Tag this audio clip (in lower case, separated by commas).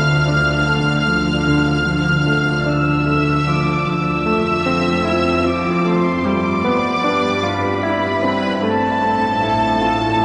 sad music, music, soundtrack music